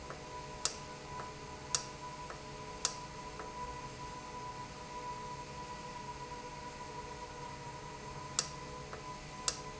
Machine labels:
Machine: valve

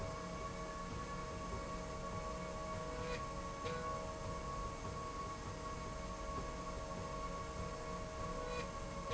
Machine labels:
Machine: slide rail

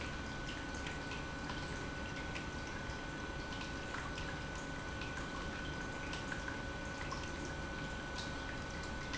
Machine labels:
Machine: pump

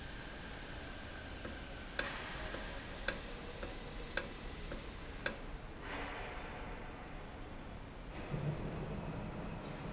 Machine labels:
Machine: valve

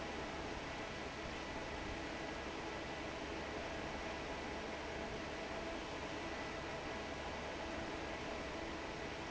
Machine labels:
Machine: fan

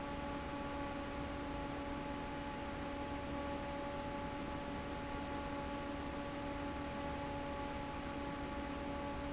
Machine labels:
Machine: fan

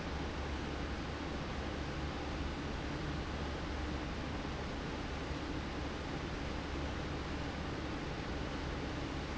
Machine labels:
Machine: fan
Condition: abnormal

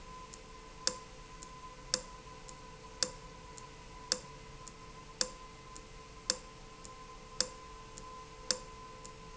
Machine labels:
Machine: valve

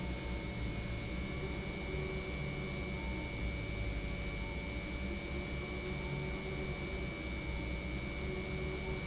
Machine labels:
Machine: pump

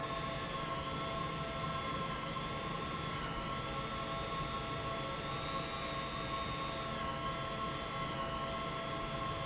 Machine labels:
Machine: pump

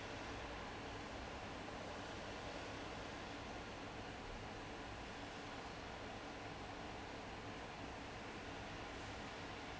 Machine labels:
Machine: fan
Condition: abnormal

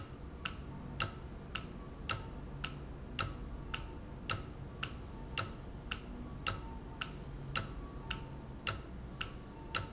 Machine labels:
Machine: valve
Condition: normal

